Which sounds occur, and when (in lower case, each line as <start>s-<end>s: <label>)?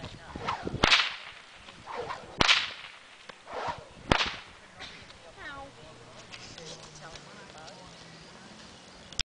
0.0s-0.8s: wind noise (microphone)
0.0s-9.2s: rustle
0.2s-0.7s: woman speaking
0.2s-0.7s: swish
0.8s-1.4s: whip
1.7s-2.3s: wind noise (microphone)
1.8s-2.3s: swish
2.3s-2.9s: whip
3.2s-3.3s: generic impact sounds
3.4s-4.0s: swish
3.6s-4.5s: wind noise (microphone)
4.0s-4.6s: whip
4.7s-6.2s: speech
5.0s-5.1s: generic impact sounds
5.3s-5.7s: woman speaking
5.4s-9.1s: motor vehicle (road)
6.2s-7.2s: generic impact sounds
6.4s-6.8s: woman speaking
7.0s-7.9s: woman speaking
7.5s-7.7s: generic impact sounds
7.6s-9.1s: bell
8.2s-8.6s: woman speaking
8.8s-8.9s: generic impact sounds
9.0s-9.1s: generic impact sounds